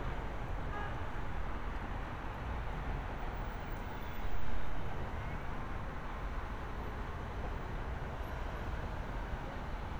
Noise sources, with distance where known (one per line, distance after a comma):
car horn, far